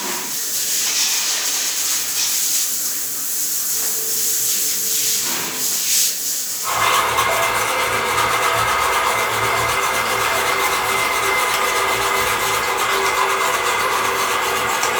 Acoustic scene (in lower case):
restroom